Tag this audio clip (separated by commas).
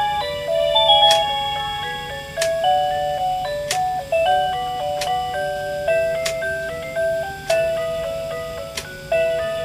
Tick-tock, Tick, Music